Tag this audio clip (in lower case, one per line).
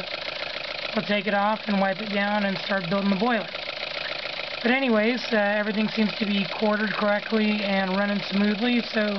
speech